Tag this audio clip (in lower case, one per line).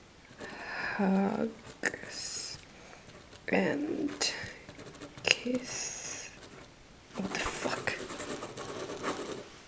speech
inside a small room